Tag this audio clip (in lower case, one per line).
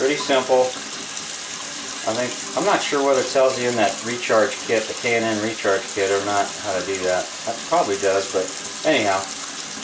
speech